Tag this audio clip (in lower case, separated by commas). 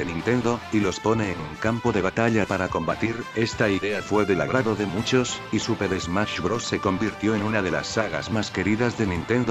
music, speech